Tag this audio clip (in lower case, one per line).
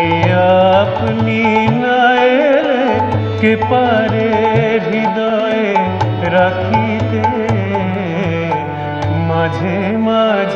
singing
music
carnatic music